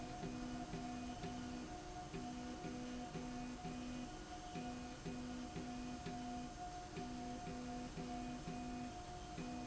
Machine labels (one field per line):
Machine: slide rail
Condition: normal